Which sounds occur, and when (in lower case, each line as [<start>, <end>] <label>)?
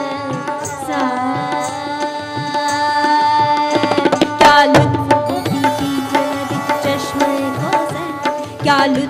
[0.00, 0.55] female singing
[0.00, 9.05] music
[0.91, 3.82] female singing
[4.44, 9.05] female singing